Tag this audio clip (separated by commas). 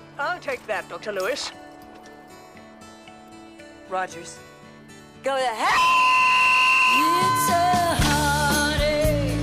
Pop music